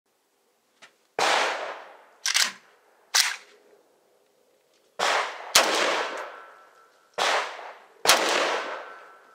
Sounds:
outside, rural or natural

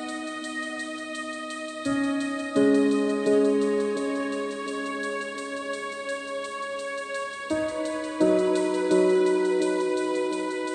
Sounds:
new-age music, music

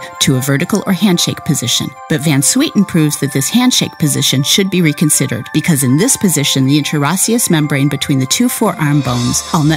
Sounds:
speech, music

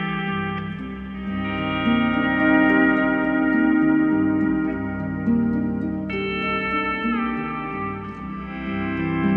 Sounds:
music

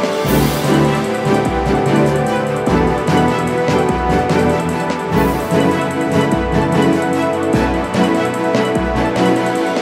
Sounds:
music, video game music

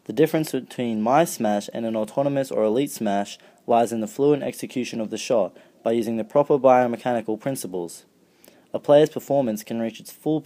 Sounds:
speech

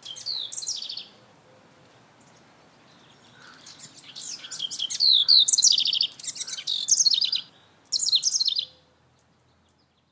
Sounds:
outside, rural or natural, bird

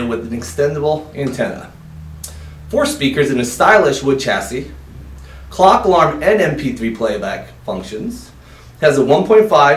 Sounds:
speech

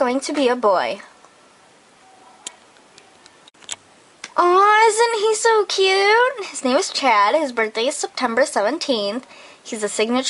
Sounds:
speech

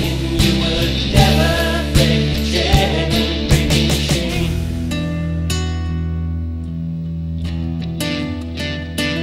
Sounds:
guitar, inside a small room, musical instrument, music, singing, plucked string instrument, slide guitar

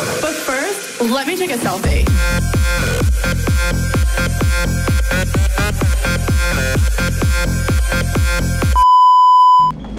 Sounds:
music, speech

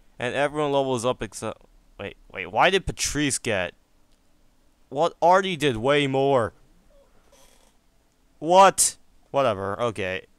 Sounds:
speech

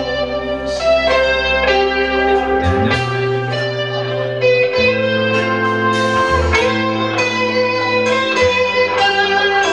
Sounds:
speech, music, inside a large room or hall

